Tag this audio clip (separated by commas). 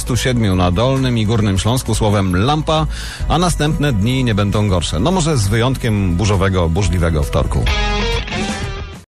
Speech